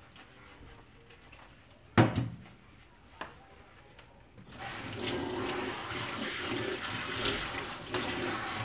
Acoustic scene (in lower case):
kitchen